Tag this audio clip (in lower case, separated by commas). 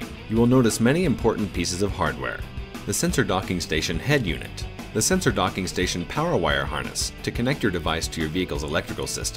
speech, music